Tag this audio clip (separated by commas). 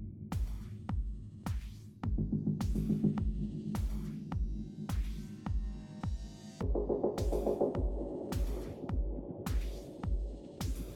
Music